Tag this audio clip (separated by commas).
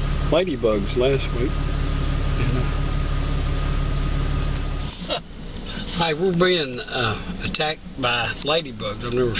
Speech